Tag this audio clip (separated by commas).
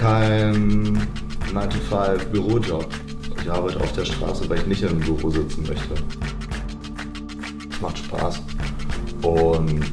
Speech, Music